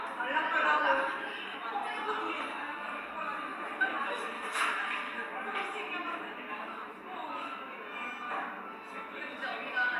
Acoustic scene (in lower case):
cafe